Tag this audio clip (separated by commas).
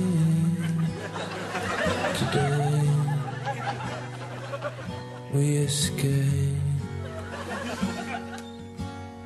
Laughter